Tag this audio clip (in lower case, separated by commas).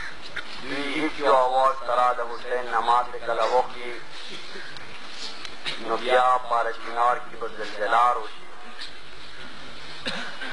speech, male speech